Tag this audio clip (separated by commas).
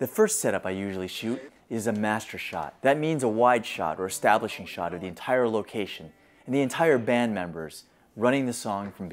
Speech